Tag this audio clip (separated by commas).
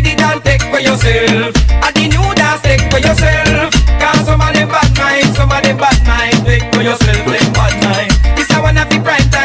Music